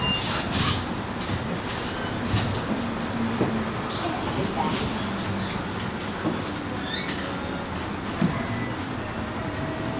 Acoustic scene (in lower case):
bus